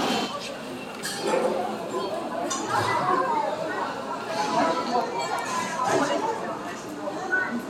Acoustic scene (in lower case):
restaurant